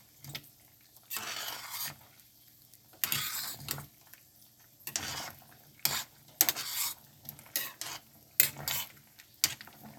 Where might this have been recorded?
in a kitchen